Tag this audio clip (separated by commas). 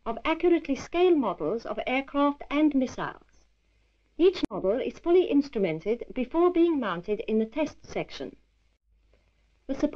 Speech